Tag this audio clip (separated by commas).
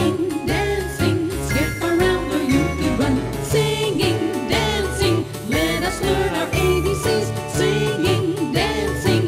Music, Female singing